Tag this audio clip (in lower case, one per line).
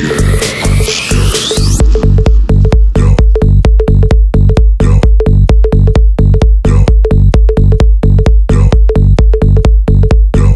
pop music
electronic music
house music
hip hop music
music